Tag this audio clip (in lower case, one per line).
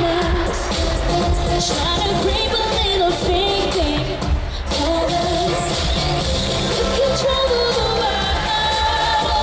music